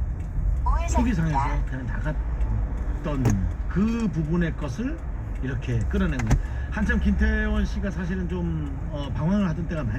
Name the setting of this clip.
car